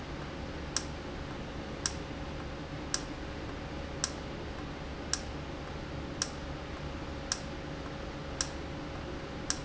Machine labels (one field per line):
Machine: valve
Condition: normal